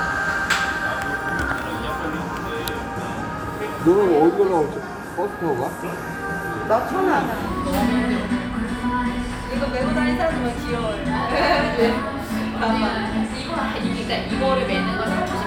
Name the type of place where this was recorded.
cafe